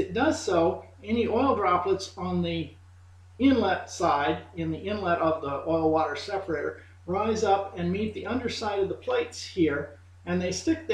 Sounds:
speech

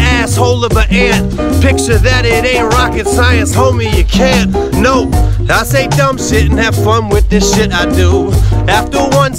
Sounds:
rapping

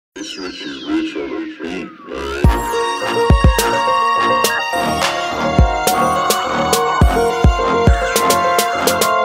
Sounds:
music

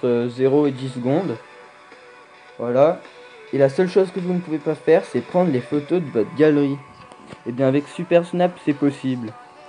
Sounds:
speech, music

